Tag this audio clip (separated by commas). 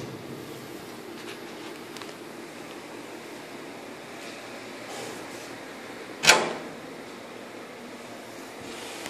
Cupboard open or close